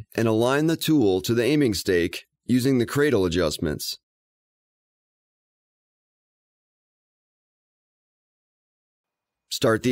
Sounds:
speech

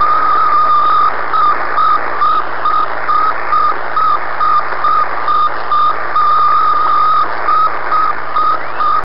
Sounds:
cacophony

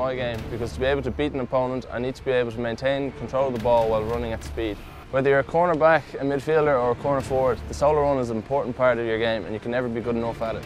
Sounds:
speech, music

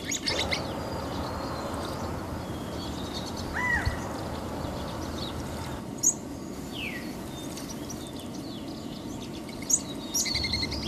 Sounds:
bird squawking

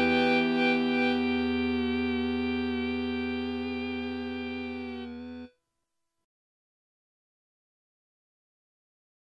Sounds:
keyboard (musical), piano, musical instrument, electric piano, music

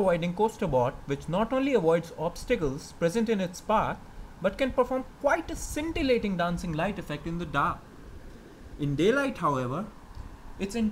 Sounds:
speech

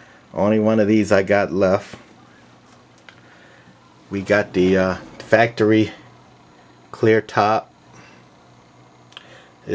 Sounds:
radio, footsteps, speech

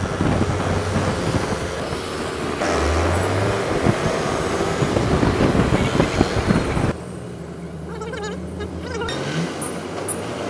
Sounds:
motorcycle, outside, urban or man-made

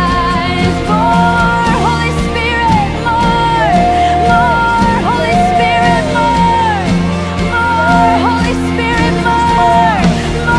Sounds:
music

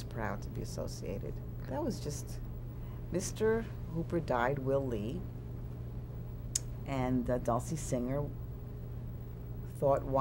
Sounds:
speech, inside a small room

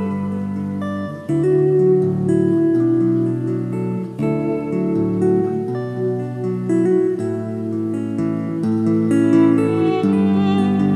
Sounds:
music, violin, musical instrument

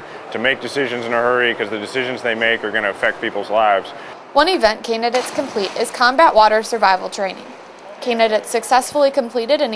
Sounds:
speech

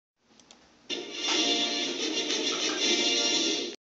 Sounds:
television, music

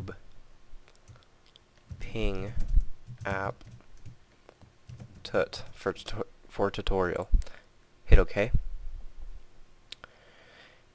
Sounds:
speech

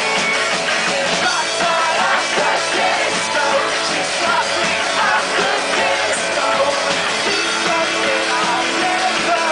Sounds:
disco, music

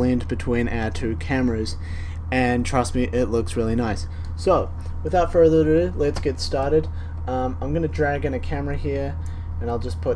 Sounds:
speech

